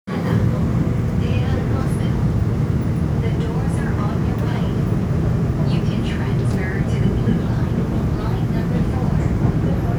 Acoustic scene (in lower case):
subway train